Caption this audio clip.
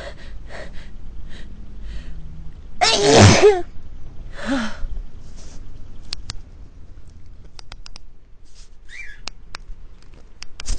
Prelude of gasping air followed by a sneeze